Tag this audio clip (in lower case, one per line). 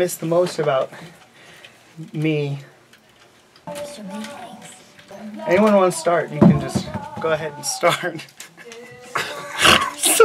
inside a small room
music
speech